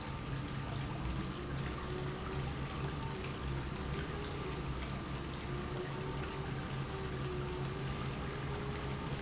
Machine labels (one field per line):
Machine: pump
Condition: normal